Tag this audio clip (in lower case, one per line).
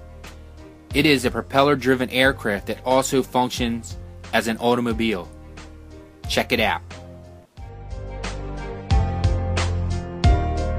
music